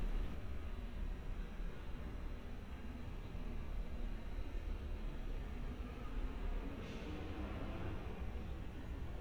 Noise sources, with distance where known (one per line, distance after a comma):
background noise